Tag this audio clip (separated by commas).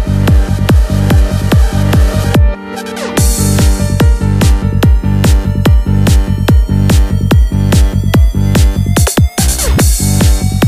Electronic music, Techno, Music